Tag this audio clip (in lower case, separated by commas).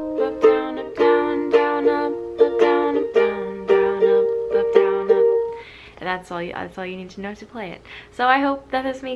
playing ukulele